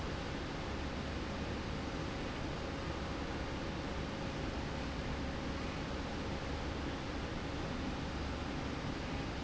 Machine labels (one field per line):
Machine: slide rail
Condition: normal